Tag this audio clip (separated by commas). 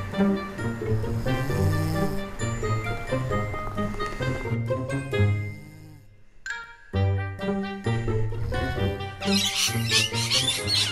Chirp, Bird, Bird vocalization